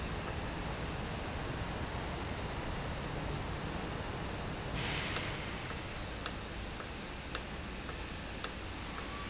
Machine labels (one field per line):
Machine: valve